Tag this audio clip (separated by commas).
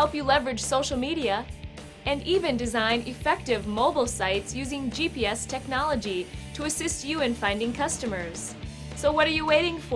Music, Speech